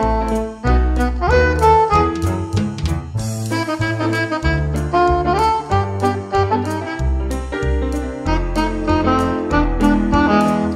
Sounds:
Music

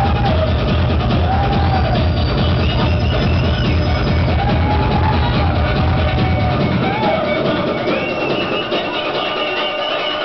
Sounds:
Music, Techno

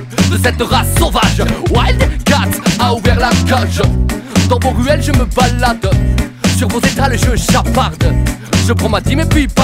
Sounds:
Music

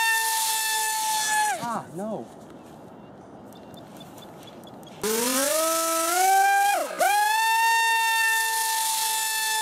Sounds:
outside, rural or natural, Speech

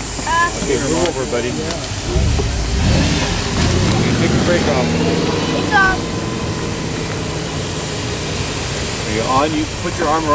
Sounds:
Speech, Hiss, Heavy engine (low frequency)

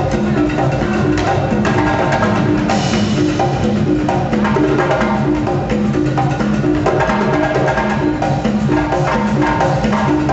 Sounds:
Percussion, Drum, Tabla

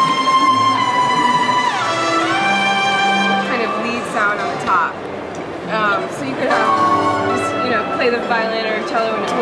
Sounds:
Musical instrument, Music, fiddle, Speech

